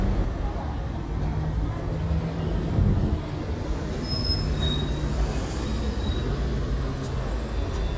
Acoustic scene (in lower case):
street